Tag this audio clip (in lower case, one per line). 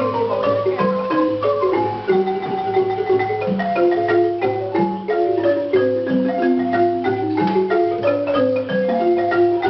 music